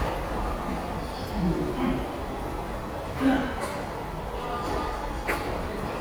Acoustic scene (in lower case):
subway station